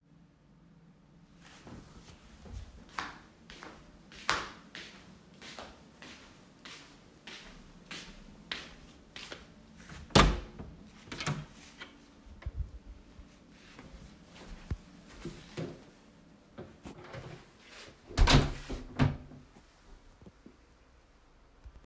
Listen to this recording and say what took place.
I walked across the living room toward the front door. I opened the door stepped through and then closed it behind me. My footsteps were clearly audible throughout the scene.